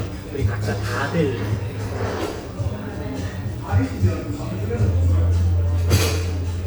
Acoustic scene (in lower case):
cafe